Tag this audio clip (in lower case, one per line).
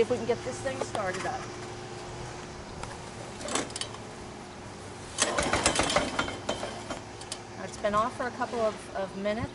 lawn mower
speech